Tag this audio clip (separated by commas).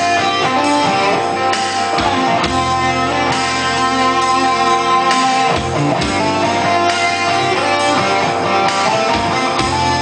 Music